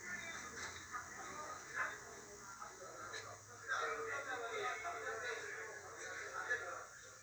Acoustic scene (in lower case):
restaurant